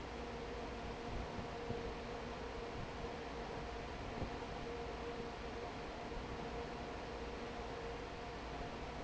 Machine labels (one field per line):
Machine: fan